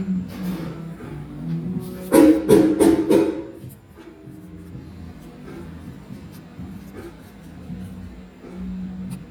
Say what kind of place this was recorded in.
cafe